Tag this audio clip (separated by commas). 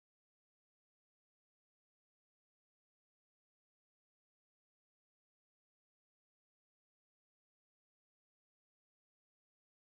Silence